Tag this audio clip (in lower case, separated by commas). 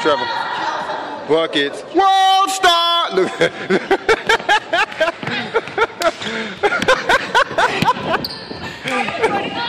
inside a large room or hall, speech, basketball bounce